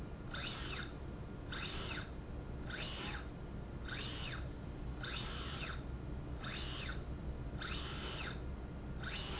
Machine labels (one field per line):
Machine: slide rail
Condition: normal